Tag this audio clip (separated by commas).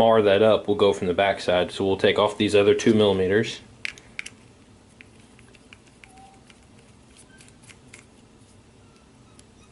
Speech